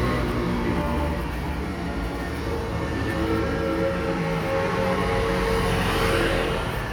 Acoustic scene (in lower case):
street